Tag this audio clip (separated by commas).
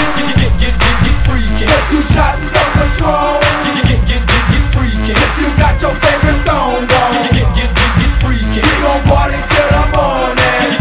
Music